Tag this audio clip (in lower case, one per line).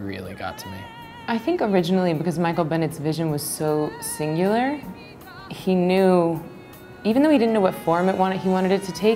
music
speech
inside a small room